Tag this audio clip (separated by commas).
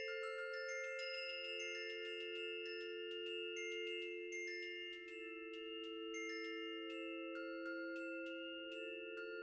Glockenspiel, Mallet percussion, xylophone